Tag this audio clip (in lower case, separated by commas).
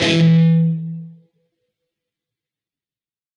plucked string instrument, guitar, musical instrument, music